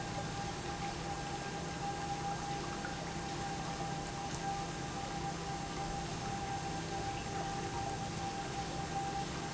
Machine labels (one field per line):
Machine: pump